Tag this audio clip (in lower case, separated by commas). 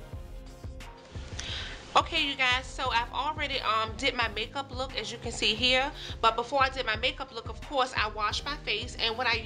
speech, music